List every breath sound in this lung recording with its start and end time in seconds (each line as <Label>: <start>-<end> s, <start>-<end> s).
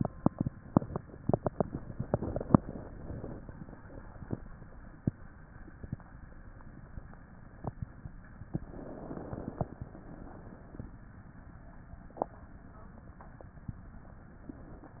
Inhalation: 2.06-3.41 s, 8.39-9.69 s
Exhalation: 3.44-4.33 s, 9.73-11.03 s